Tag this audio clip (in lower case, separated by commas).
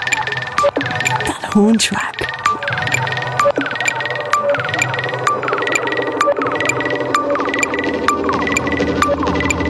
speech, music